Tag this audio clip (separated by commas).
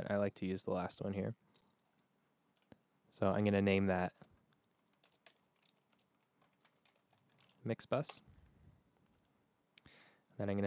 Speech